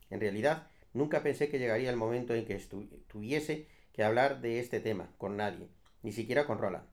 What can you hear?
speech